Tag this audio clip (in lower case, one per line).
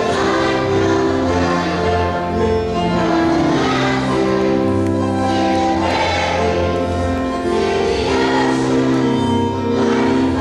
male singing
choir
music
female singing